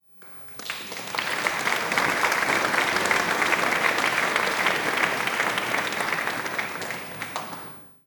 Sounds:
applause
human group actions

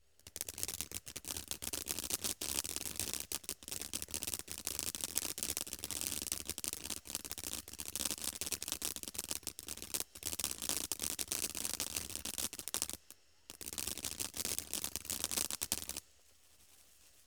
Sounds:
fireworks
explosion

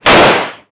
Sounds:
gunshot
explosion

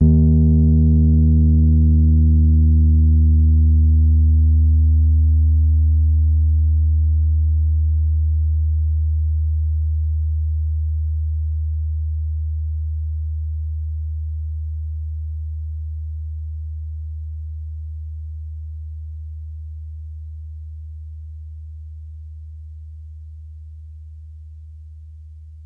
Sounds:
musical instrument
keyboard (musical)
piano
music

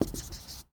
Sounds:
domestic sounds
writing

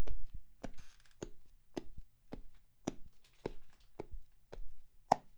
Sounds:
footsteps

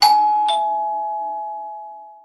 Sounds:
doorbell
door
alarm
home sounds

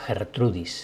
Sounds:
human voice

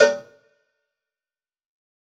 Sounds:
cowbell
bell

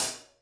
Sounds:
music
cymbal
percussion
musical instrument
hi-hat

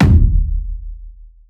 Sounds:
drum
bass drum
music
musical instrument
percussion

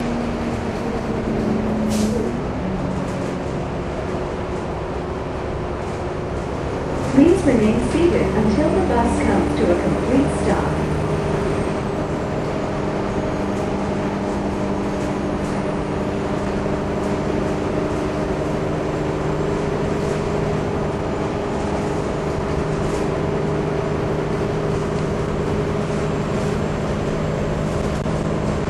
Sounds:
vehicle
bus
motor vehicle (road)

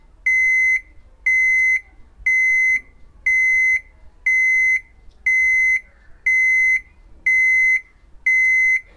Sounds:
alarm

